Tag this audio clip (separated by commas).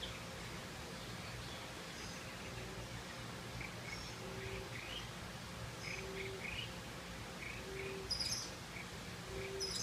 Bird